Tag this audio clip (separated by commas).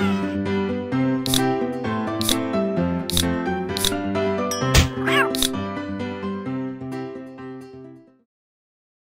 Music